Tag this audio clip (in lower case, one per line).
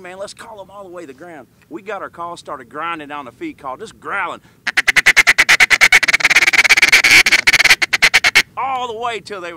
speech
quack